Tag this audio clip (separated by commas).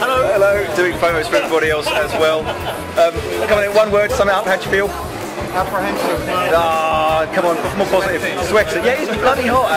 Music, inside a public space, Speech